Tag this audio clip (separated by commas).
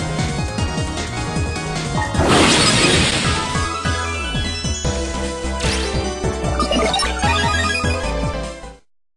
Music